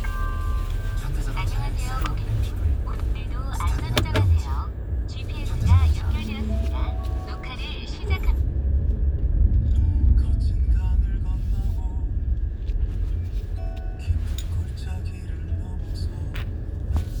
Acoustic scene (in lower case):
car